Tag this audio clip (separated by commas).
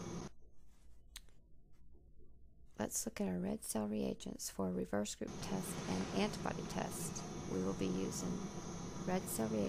Speech